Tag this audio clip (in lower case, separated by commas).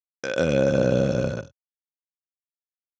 burping